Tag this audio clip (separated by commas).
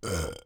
eructation